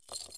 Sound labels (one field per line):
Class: object falling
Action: being thrown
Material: metal